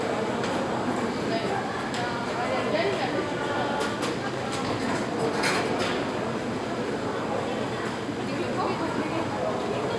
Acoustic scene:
crowded indoor space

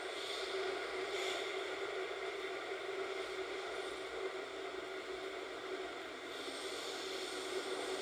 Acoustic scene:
subway train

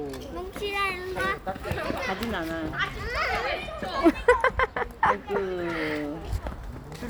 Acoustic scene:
park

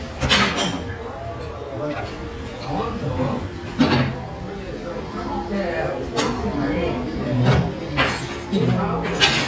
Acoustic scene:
restaurant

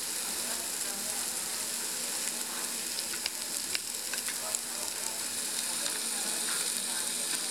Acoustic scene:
restaurant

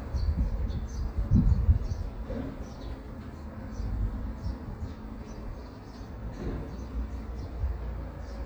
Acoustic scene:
residential area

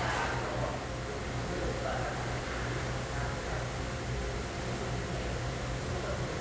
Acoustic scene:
restaurant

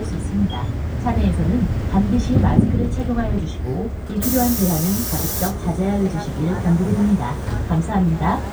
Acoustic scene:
bus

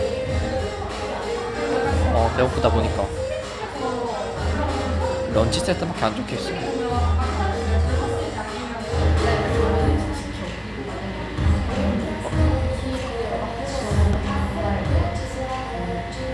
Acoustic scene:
cafe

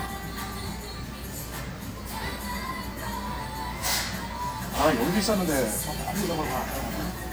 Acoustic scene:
restaurant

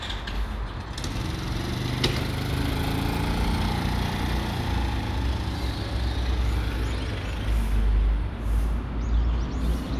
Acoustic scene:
residential area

